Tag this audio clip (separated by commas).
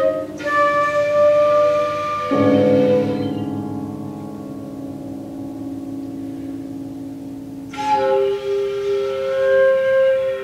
Musical instrument, Piano, Classical music, Keyboard (musical), Music